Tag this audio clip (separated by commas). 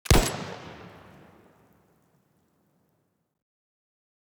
Explosion